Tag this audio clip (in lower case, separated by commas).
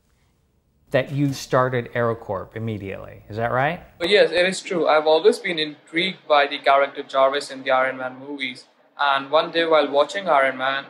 speech